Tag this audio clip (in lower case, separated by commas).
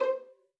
bowed string instrument, musical instrument, music